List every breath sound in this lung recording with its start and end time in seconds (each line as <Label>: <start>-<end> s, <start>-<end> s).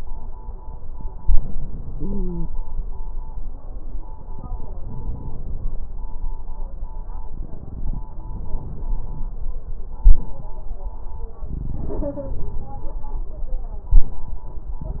Inhalation: 1.18-2.53 s, 4.78-5.74 s
Stridor: 1.90-2.53 s